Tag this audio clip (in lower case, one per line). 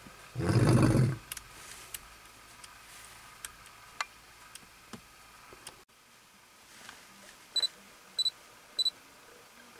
lions roaring